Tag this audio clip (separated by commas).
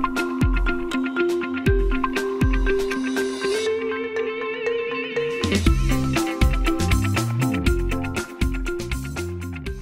Music